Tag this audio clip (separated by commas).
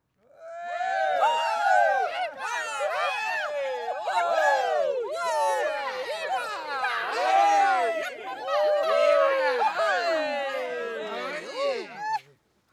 Human group actions, Cheering